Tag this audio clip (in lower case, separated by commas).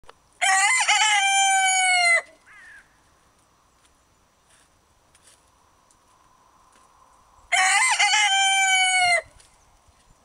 chicken crowing